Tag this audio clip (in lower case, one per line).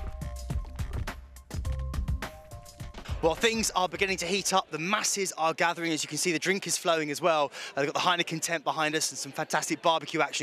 speech
music